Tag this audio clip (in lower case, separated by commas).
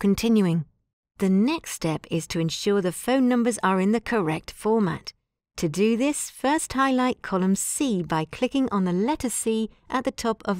speech